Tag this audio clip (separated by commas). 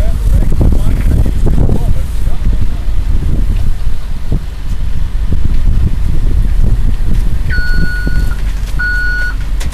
Speech